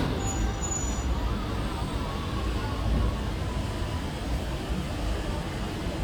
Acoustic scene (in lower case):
street